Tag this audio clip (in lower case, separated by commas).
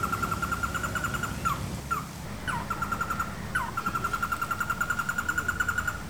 wild animals, animal, bird